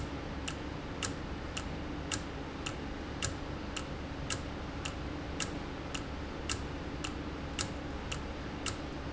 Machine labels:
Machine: valve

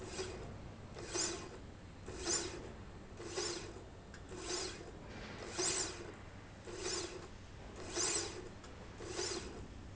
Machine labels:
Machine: slide rail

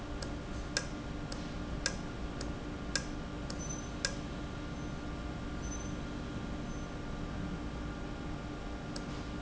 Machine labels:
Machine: valve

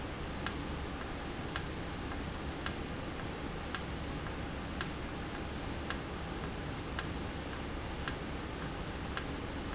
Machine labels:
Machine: valve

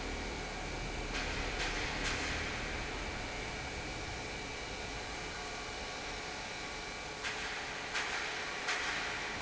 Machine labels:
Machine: pump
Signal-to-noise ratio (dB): -6 dB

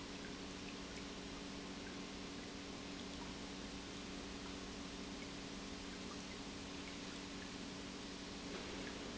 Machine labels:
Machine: pump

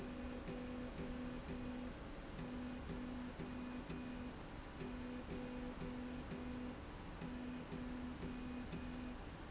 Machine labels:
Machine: slide rail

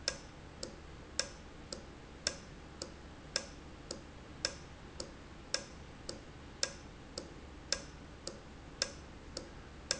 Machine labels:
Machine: valve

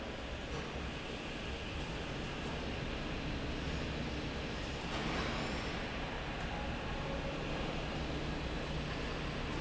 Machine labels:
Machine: fan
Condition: normal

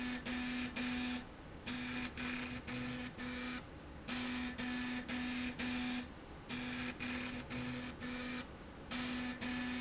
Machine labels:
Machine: slide rail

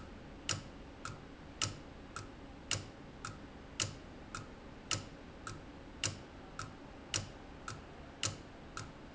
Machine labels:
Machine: valve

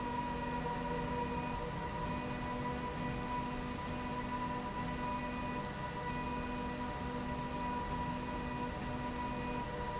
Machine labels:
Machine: slide rail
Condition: normal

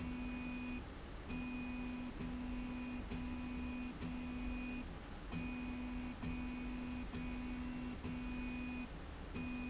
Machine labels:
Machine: slide rail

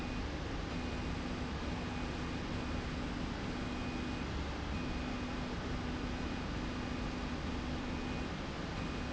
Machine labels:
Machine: slide rail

